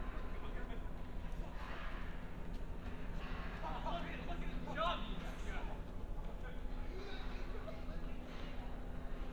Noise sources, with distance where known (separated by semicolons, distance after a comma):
unidentified human voice